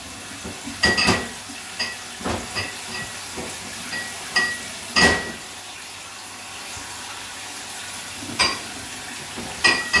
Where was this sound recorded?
in a kitchen